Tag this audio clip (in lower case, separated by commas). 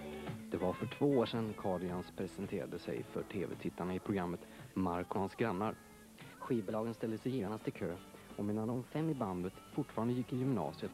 speech, music